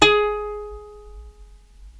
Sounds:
Musical instrument, Plucked string instrument, Music

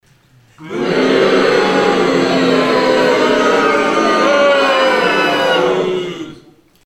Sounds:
Crowd, Human group actions

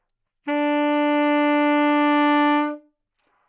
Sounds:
Musical instrument, Music, Wind instrument

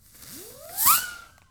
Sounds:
Fireworks, Explosion

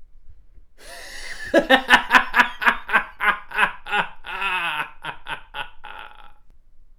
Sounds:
Human voice, Laughter

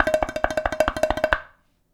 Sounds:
dishes, pots and pans, home sounds

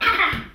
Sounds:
Laughter, Human voice

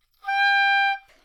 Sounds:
Musical instrument, woodwind instrument, Music

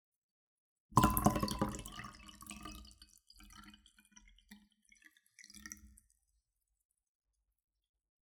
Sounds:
Liquid, Fill (with liquid)

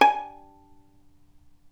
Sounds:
Bowed string instrument, Music, Musical instrument

